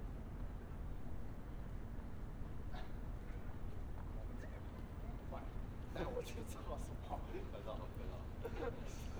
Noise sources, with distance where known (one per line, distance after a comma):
person or small group talking, near